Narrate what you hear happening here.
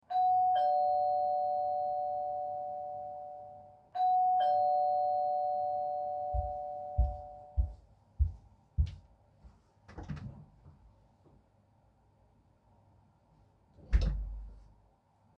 The doorbell rang twice and I walked toward the front door. When I reached the door, I opened it and then closed it again.